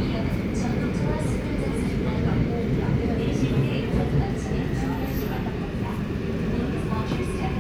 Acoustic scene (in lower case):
subway train